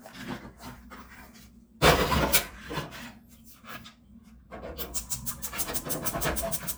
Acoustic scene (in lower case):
kitchen